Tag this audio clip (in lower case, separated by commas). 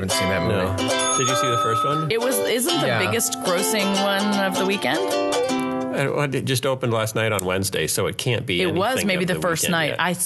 speech, music